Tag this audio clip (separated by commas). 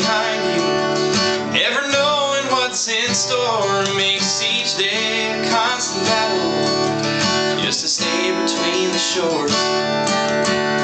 Music, Independent music